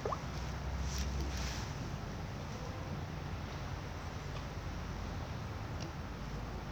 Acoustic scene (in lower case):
residential area